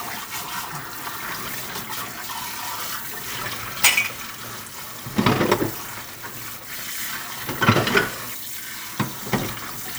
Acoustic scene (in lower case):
kitchen